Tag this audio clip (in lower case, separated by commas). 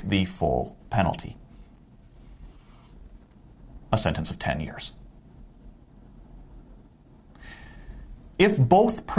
speech